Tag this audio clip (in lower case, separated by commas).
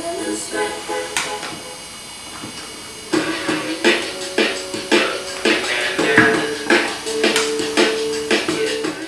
speech, music